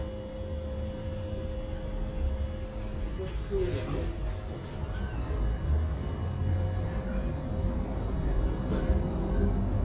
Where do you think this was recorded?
on a bus